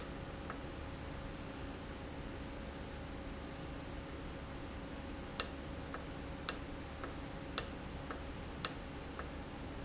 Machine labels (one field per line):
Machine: valve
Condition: normal